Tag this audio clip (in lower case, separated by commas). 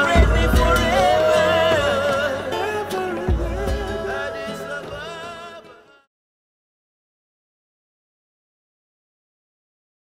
music, country